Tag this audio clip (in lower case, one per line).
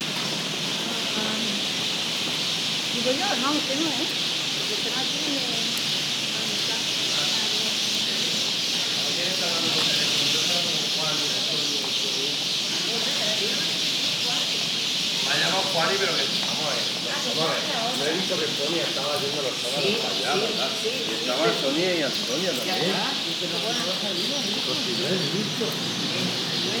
bird
animal
wild animals